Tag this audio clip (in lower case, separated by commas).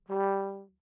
brass instrument, musical instrument, music